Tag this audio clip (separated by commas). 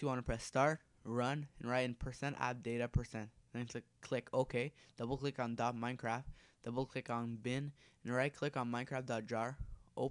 Speech